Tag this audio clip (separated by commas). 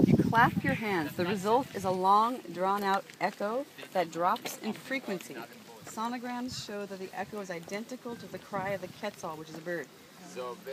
Speech